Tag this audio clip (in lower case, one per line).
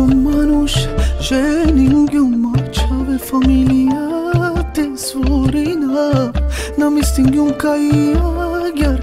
music